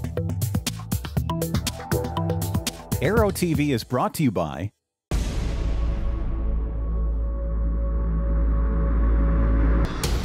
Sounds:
Speech, Music

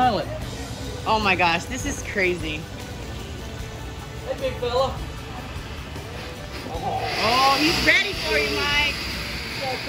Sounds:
alligators

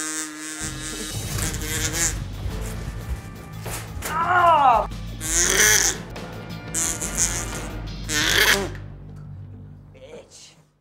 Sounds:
inside a large room or hall, Music, inside a small room

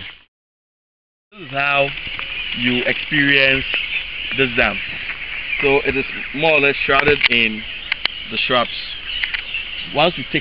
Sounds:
Speech, footsteps

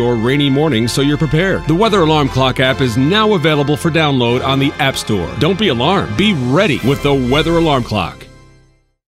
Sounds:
Speech, Music

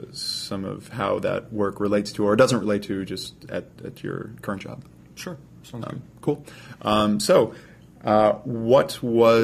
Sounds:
Speech

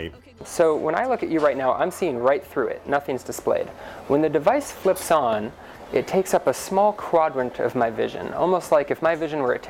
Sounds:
Speech

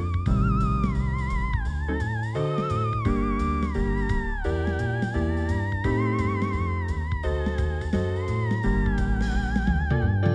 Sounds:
Electric piano, Piano, Keyboard (musical)

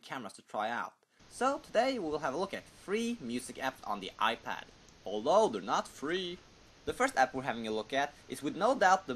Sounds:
Speech

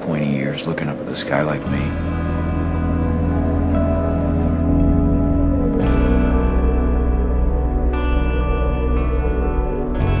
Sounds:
Music, Speech

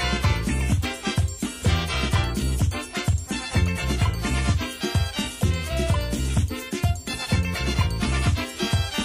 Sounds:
Music

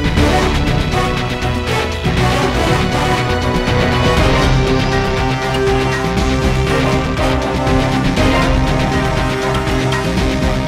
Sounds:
Music, Soundtrack music

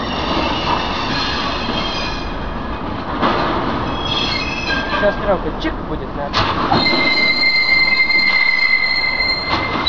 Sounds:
Clickety-clack, Rail transport, train wagon, Train wheels squealing, Train

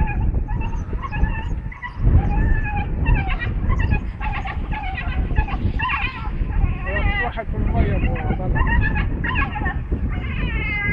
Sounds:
Whimper (dog), Speech

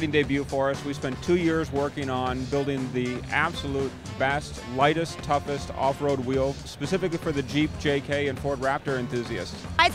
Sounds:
Speech, Music

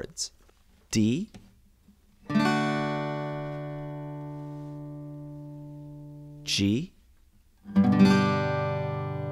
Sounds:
Music, Speech, Acoustic guitar

